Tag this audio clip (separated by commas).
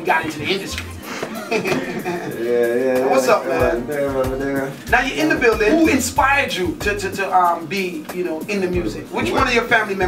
Radio, Music, Speech